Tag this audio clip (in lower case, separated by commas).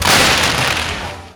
fireworks, explosion